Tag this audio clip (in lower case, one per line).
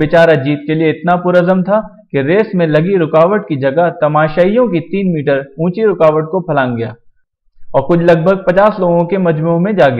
speech